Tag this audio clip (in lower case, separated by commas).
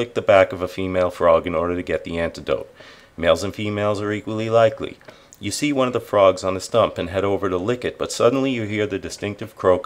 speech